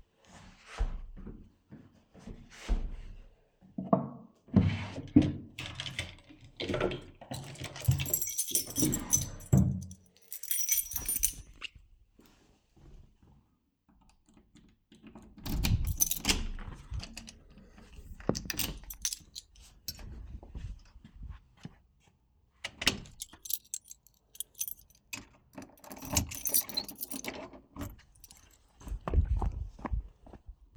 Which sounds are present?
footsteps, wardrobe or drawer, keys, door